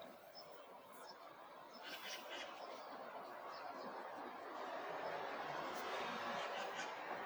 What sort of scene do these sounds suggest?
park